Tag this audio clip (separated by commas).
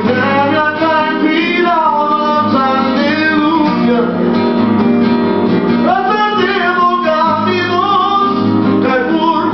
Male singing, Music